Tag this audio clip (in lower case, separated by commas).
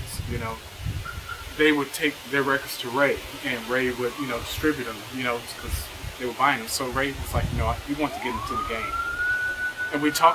speech, emergency vehicle